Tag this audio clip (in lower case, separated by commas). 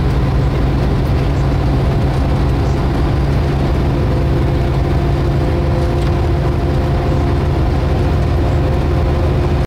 vehicle, truck